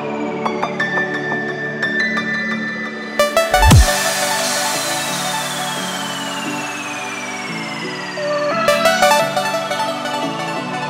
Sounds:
Music

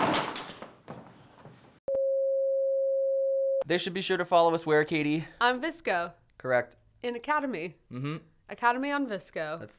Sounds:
Speech

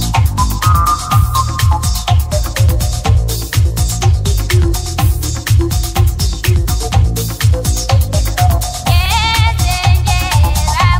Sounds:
Music

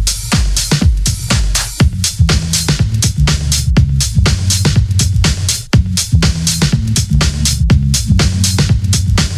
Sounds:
Music

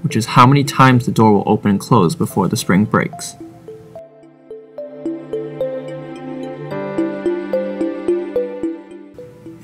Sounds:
Music, Speech

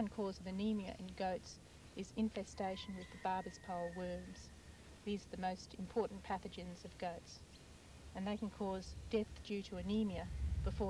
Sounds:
Speech

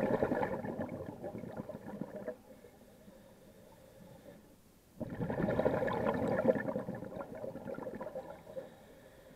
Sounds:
scuba diving

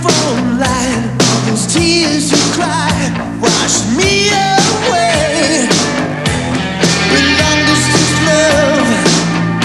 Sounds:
Music

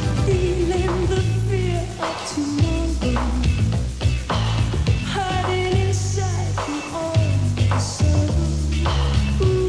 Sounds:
Music

